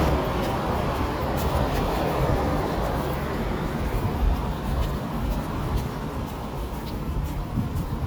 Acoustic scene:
street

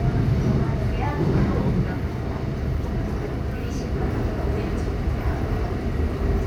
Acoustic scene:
subway train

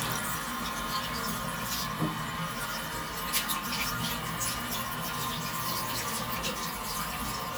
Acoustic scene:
restroom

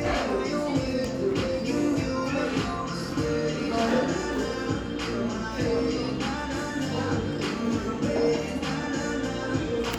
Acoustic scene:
cafe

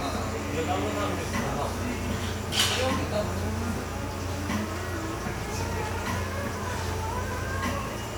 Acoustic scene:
cafe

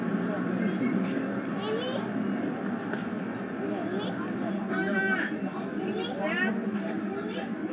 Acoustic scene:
residential area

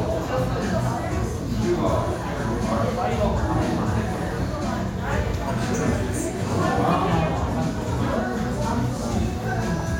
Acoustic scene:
restaurant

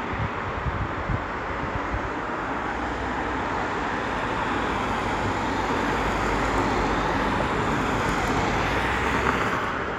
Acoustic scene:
street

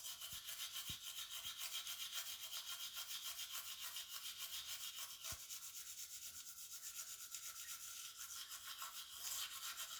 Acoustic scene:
restroom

